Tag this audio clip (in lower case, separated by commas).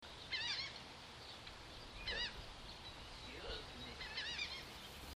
wild animals, seagull, animal, bird